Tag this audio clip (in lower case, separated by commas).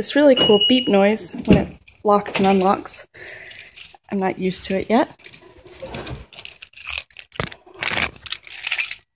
speech